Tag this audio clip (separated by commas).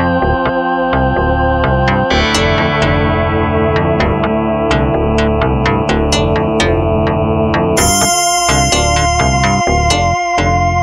Effects unit, Music